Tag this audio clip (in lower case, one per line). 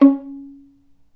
music
bowed string instrument
musical instrument